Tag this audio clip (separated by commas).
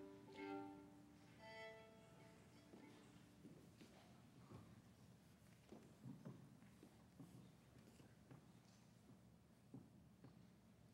Musical instrument, Music